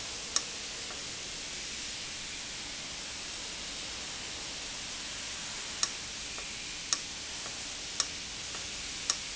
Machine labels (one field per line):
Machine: valve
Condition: abnormal